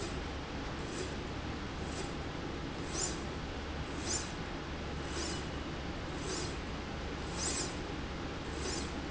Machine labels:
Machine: slide rail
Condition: normal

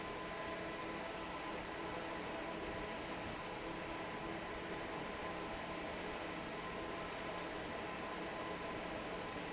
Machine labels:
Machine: fan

